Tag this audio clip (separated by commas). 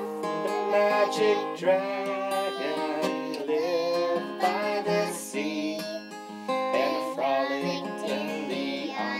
Music